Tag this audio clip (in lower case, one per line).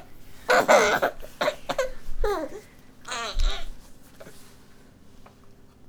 laughter
human voice